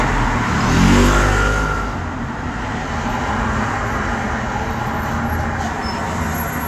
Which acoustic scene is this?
street